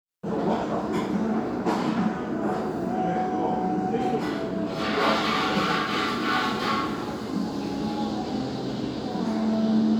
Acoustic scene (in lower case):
restaurant